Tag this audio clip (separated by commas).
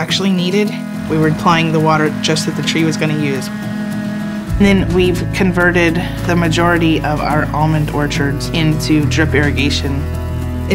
Music, Speech